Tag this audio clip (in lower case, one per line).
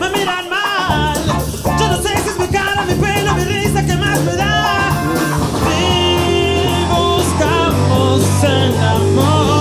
music
disco
exciting music